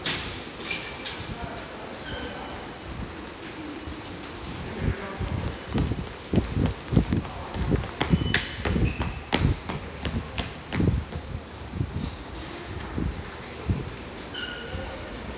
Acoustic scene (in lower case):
subway station